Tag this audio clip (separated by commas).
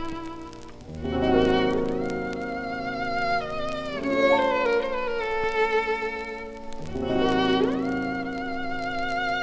Musical instrument, fiddle, Music